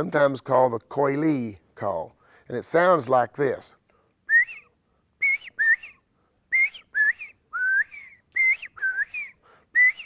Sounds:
speech
whistling
outside, rural or natural

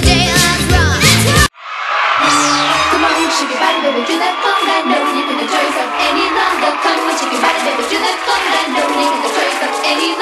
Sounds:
music

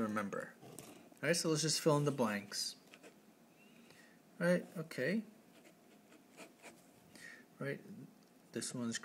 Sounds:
speech
writing

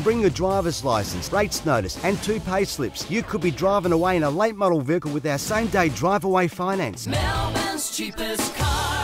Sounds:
speech
music

